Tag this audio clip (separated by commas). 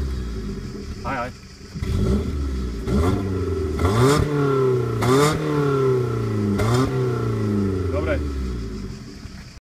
Speech